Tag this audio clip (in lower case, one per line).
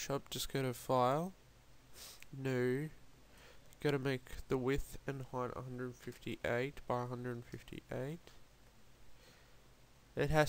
speech